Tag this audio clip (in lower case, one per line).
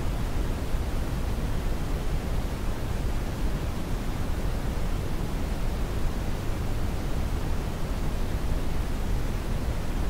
white noise